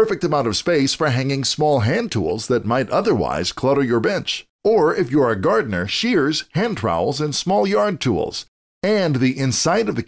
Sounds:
speech

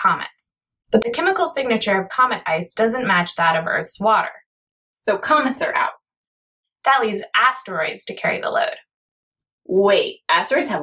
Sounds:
speech

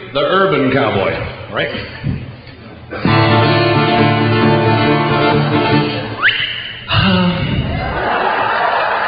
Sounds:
speech, music

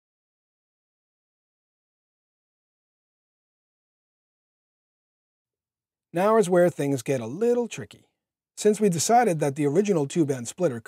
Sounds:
speech

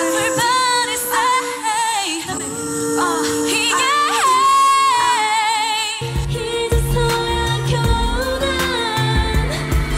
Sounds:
choir, female singing, music

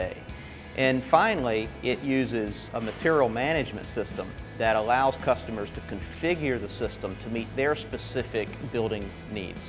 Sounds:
speech, music

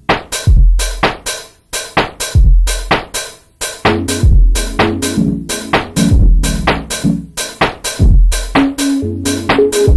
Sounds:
music, drum

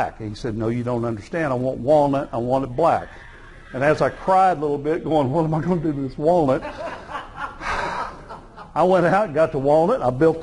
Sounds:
speech

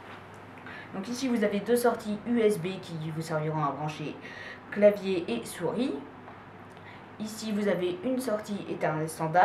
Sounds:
speech

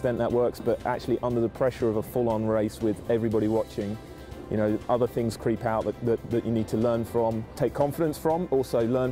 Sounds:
music, speech

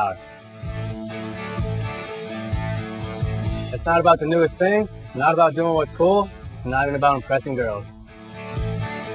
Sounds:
music, speech

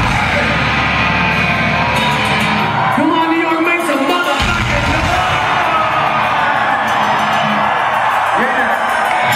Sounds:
speech, inside a large room or hall, music

